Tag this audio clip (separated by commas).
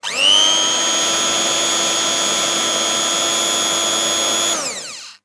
home sounds